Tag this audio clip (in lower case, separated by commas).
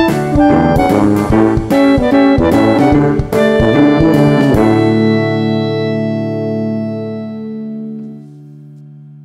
music